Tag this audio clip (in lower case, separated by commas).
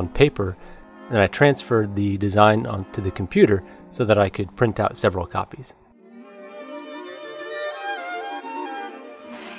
music, speech